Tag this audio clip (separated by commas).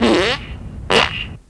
Fart